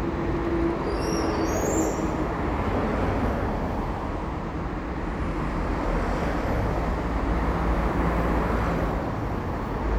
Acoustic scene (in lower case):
street